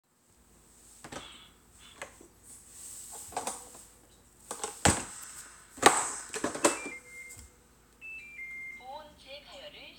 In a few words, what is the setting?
kitchen